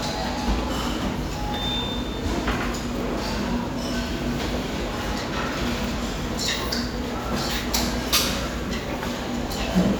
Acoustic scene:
restaurant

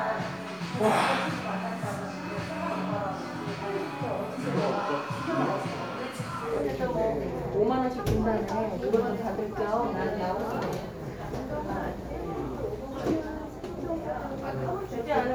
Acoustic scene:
crowded indoor space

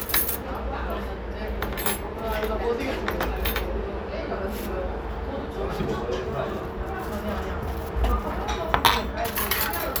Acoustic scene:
restaurant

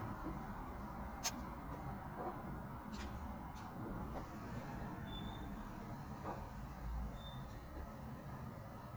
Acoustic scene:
residential area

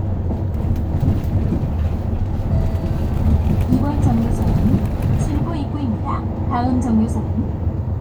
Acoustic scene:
bus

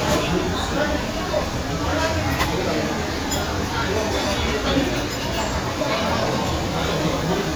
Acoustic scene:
crowded indoor space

